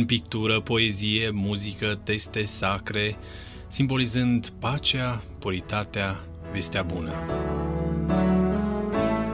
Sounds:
speech, music

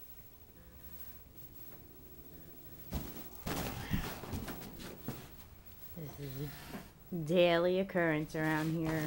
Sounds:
speech

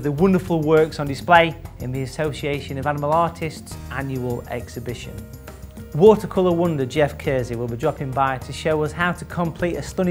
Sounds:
music, speech

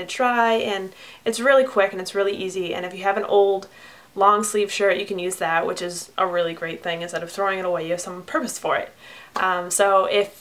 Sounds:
speech

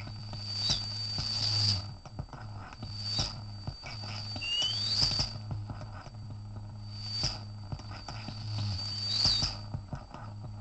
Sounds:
synthesizer

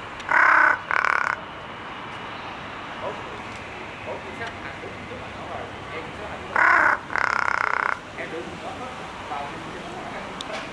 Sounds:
crow cawing

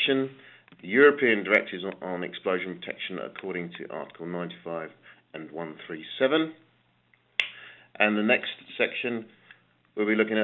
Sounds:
speech

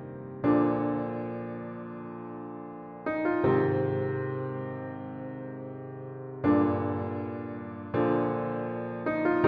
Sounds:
music

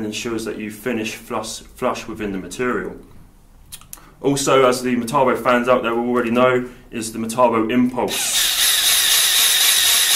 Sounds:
speech, inside a small room, drill, tools

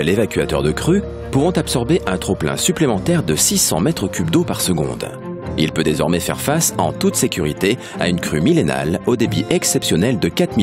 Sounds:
music, speech

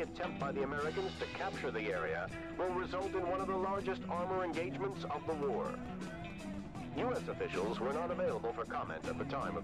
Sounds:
speech, man speaking, music

